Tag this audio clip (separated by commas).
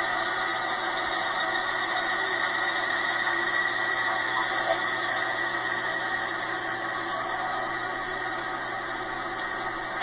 Vehicle, Car